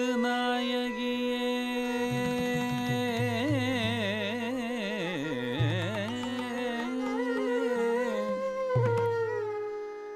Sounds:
traditional music
music

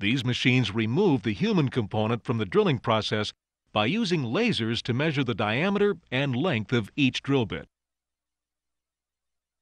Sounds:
speech

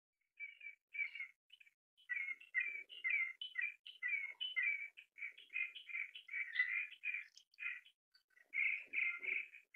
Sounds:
bird chirping
chirp
bird call
bird

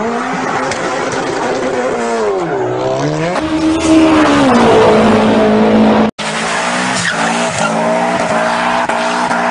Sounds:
hiss

